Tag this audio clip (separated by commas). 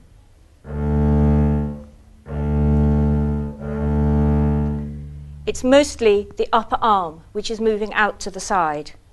playing double bass